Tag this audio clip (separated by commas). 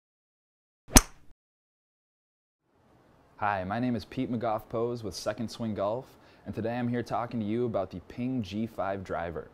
Speech